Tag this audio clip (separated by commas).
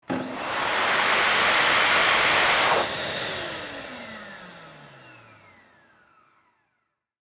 home sounds